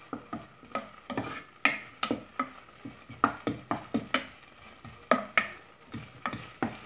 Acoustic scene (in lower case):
kitchen